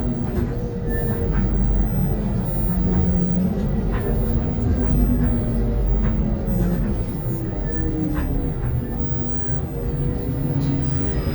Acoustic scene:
bus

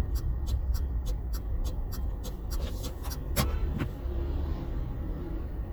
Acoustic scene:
car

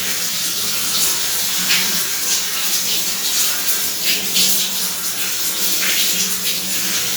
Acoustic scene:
restroom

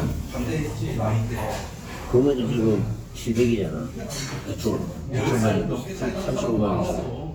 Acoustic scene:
crowded indoor space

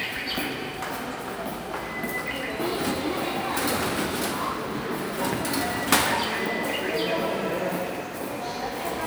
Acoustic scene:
subway station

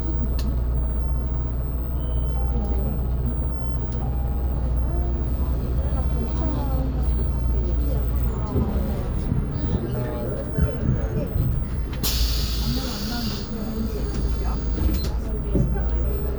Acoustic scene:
bus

